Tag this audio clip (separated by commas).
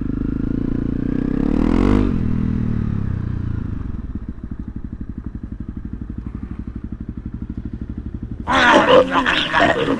Motorcycle, Vehicle, outside, urban or man-made